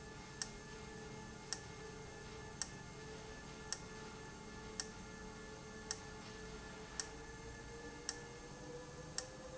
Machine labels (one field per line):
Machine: valve